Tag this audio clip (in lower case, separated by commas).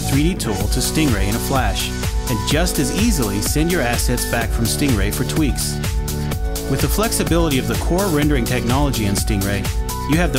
speech, music